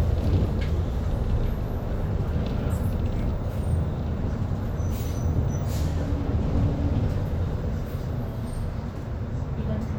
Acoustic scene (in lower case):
bus